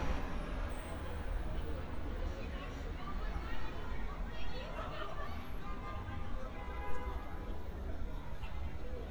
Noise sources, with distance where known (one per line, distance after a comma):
car horn, far
person or small group talking